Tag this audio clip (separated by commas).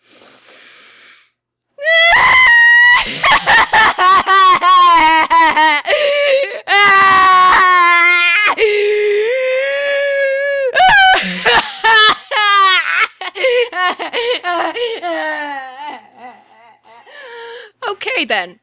Human voice, Crying